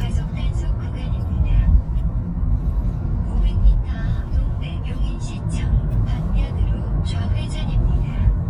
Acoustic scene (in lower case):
car